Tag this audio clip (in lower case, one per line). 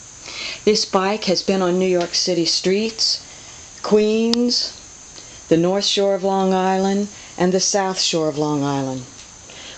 speech